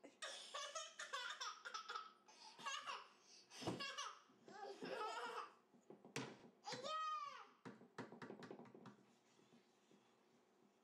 Child is laughing, then yelling